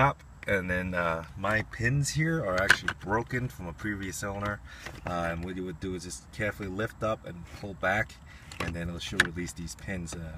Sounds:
Speech

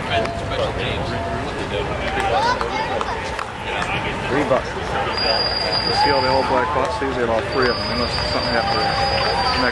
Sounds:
Speech, footsteps

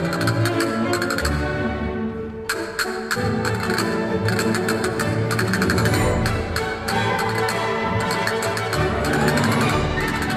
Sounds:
playing castanets

